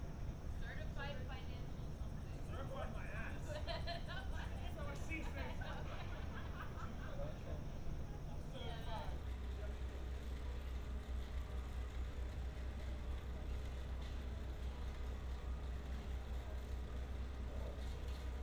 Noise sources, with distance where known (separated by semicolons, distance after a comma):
person or small group talking